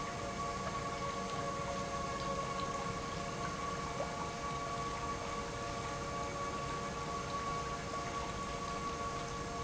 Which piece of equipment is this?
pump